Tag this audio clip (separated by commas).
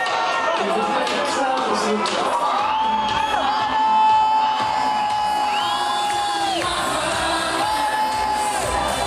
Speech, Music